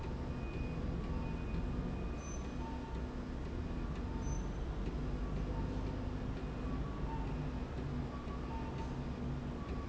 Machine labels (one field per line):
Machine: slide rail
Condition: normal